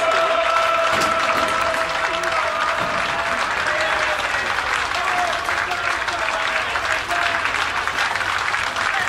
A crowding is applauding and chanting in a stadium